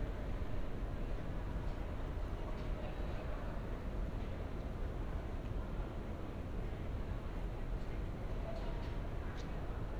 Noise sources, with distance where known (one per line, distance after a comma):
person or small group talking, far